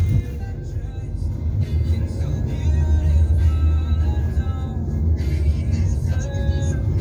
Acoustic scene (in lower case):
car